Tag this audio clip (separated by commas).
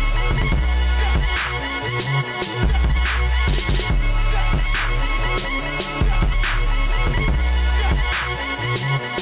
Music